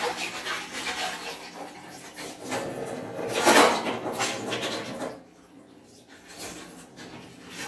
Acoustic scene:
kitchen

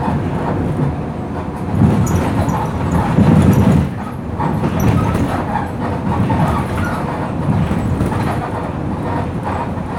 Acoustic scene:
bus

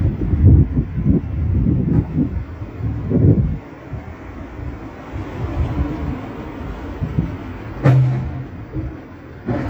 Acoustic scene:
residential area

